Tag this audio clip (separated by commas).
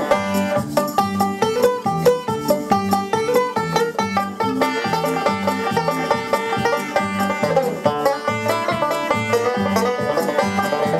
Banjo, Country, Plucked string instrument, Musical instrument, Music, playing banjo, Bluegrass